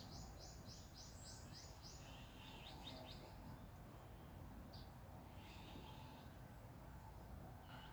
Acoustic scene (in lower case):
park